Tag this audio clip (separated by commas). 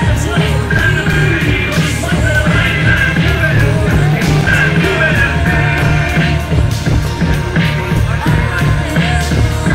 Vehicle, Music, Rock and roll